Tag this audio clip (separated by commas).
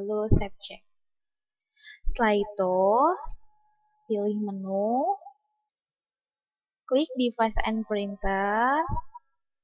Speech